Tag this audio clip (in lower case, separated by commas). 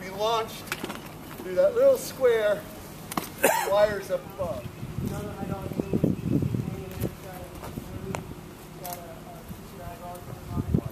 speech, outside, urban or man-made